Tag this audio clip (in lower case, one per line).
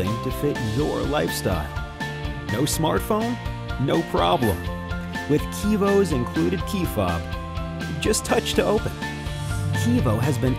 music
speech